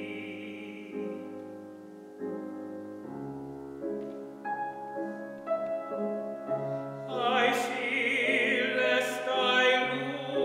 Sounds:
Music, Male singing

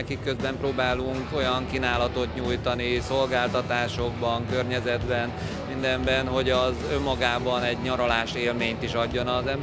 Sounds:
Music, Speech

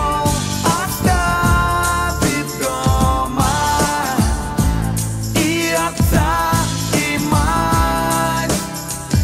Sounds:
Music

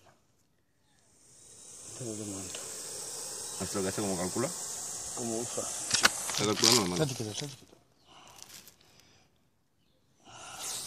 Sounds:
snake rattling

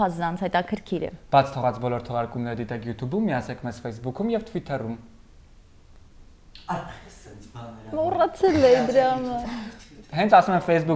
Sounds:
Speech

